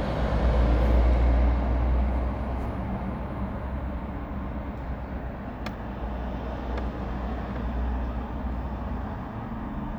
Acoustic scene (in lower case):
residential area